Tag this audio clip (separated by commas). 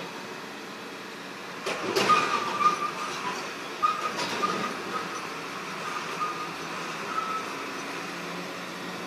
Vehicle, Air brake, Car